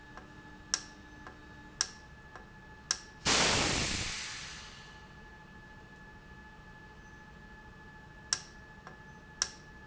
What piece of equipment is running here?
valve